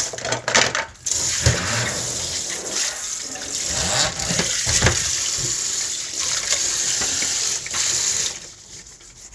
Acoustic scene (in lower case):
kitchen